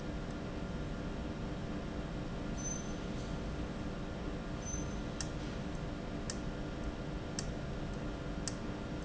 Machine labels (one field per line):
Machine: valve